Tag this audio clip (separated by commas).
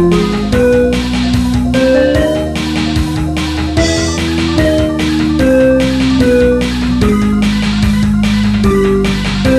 Video game music, Music